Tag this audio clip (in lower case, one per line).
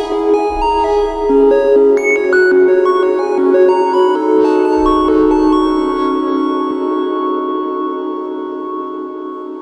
singing bowl